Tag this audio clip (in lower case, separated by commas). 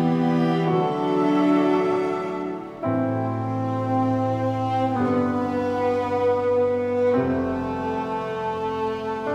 music